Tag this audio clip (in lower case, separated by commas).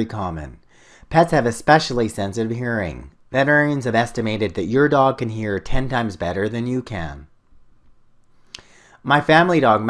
speech, narration